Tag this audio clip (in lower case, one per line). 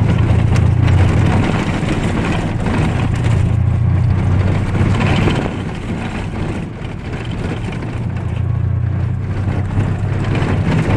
motor vehicle (road)
vehicle